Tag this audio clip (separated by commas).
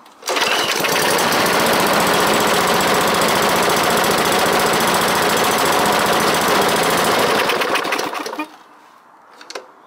lawn mowing, Lawn mower